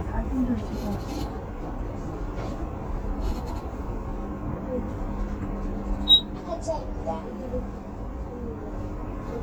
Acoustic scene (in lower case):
bus